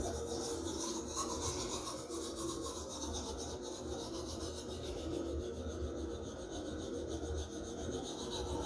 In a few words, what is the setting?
restroom